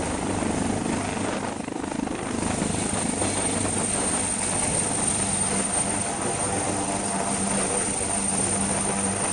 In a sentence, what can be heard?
Helicopter taking off